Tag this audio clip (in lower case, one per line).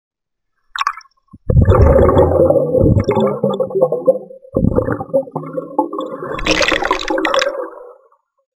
water
gurgling